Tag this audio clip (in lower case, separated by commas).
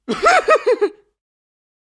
human voice, laughter